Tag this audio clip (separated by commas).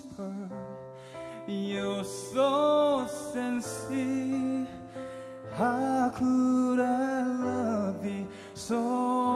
Music, Male singing